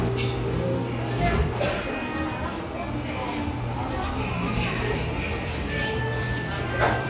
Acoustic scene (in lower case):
cafe